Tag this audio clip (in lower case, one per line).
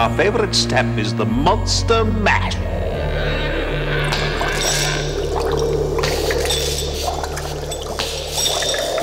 speech
music